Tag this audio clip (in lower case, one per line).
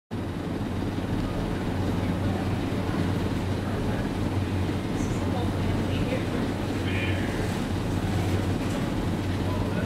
speech